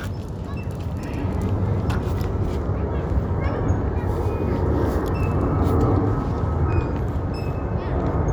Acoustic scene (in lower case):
residential area